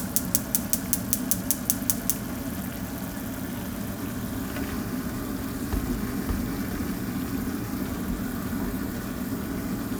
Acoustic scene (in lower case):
kitchen